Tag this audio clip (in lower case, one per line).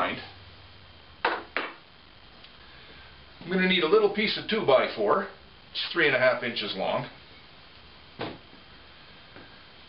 speech